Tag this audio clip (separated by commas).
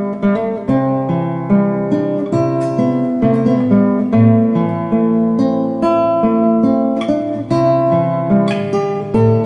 Musical instrument, Plucked string instrument, Music, Strum, Guitar